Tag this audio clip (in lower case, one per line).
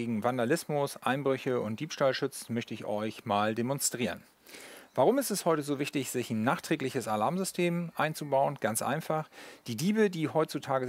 speech